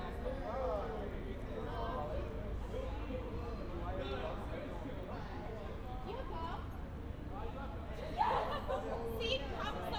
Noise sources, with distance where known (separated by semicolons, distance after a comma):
person or small group talking, near